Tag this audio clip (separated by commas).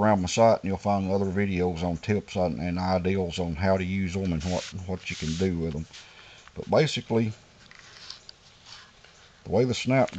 Speech